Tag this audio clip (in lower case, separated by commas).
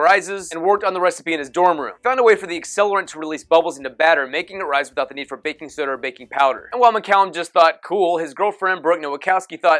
speech